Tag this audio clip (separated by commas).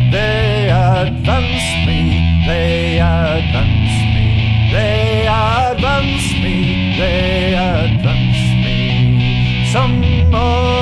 Music, Independent music